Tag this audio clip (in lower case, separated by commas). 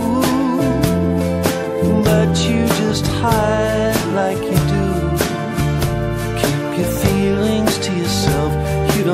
singing, music